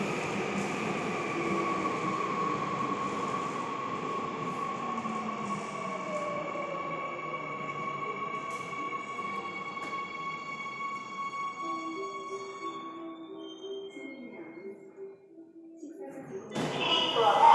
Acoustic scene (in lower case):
subway station